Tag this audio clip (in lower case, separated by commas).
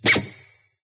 plucked string instrument, music, guitar, musical instrument